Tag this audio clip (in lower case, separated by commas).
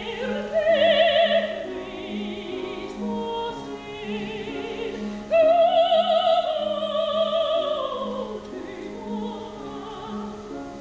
opera, classical music, music, singing